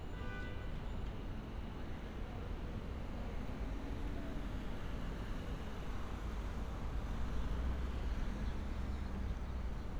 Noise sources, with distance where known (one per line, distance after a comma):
car horn, far